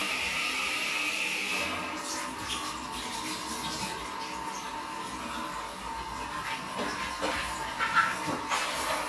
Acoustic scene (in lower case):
restroom